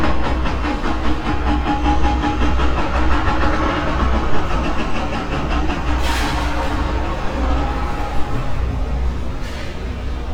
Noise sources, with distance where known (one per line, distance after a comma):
large-sounding engine
hoe ram